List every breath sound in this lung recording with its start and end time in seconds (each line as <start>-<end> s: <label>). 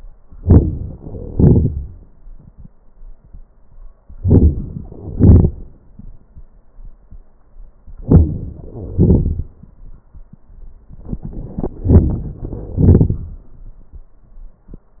0.40-1.00 s: inhalation
1.02-2.36 s: exhalation
4.19-4.89 s: inhalation
4.87-6.33 s: exhalation
8.00-8.66 s: inhalation
8.66-8.99 s: wheeze
8.66-10.31 s: exhalation